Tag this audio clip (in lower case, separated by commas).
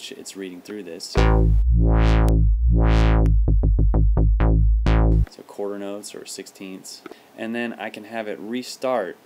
speech, music, playing synthesizer, synthesizer